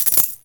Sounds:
home sounds, coin (dropping)

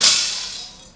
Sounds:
glass, shatter

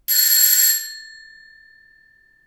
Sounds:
domestic sounds, door, doorbell, alarm

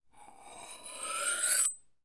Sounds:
silverware, domestic sounds

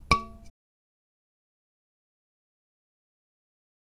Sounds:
human voice, screaming

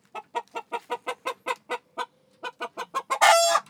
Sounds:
livestock, fowl, animal, chicken

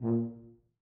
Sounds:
musical instrument, music, brass instrument

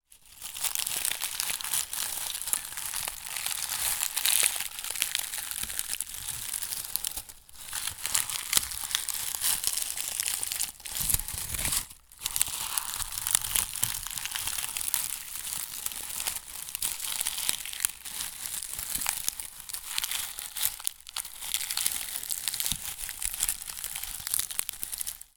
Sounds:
crumpling

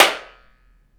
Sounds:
clapping, hands

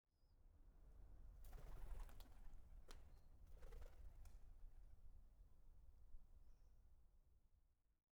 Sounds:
wild animals, animal, bird

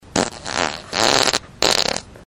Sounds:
fart

